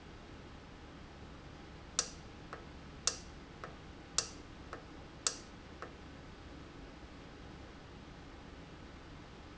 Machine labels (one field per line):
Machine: valve